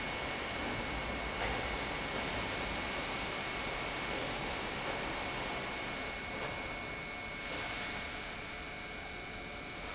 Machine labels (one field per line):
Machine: pump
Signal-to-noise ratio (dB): -6 dB